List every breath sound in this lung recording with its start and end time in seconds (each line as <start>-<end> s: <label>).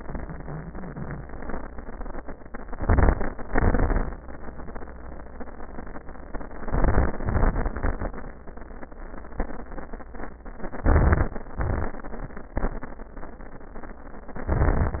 2.67-3.42 s: crackles
2.68-3.44 s: inhalation
3.47-4.22 s: exhalation
3.47-4.22 s: crackles
6.38-7.21 s: inhalation
6.38-7.21 s: crackles
7.24-8.23 s: exhalation
7.24-8.23 s: crackles
10.79-11.46 s: inhalation
10.79-11.46 s: crackles
11.47-12.13 s: exhalation
11.47-12.13 s: crackles
14.33-14.99 s: inhalation
14.33-14.99 s: crackles